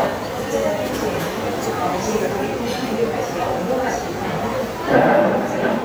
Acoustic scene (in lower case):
cafe